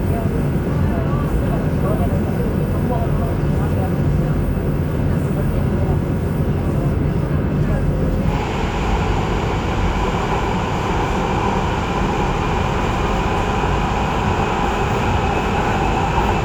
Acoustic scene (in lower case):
subway train